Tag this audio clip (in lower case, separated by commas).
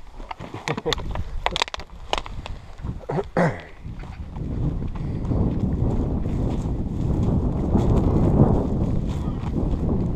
speech